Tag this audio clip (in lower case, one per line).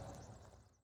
vehicle
motor vehicle (road)
car